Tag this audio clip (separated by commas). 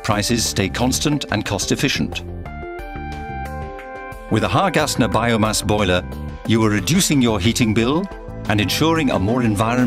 Music, Speech